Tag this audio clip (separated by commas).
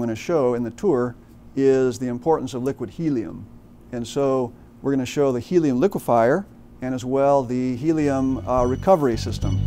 Speech, Music